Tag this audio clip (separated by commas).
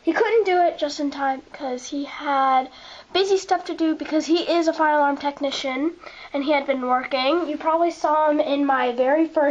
Speech